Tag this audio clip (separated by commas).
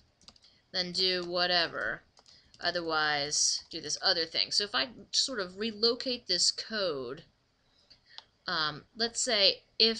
Speech